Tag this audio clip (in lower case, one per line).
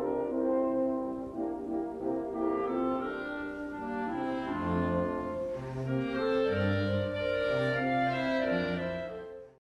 clarinet
brass instrument
playing clarinet
french horn